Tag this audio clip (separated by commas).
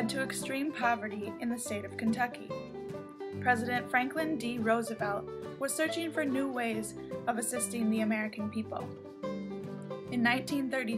Music, Speech